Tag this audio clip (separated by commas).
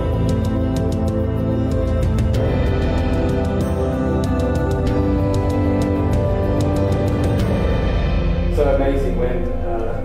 Speech, inside a large room or hall, Music